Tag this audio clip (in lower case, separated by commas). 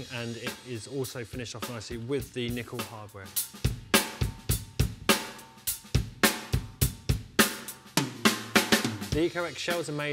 speech, drum kit, music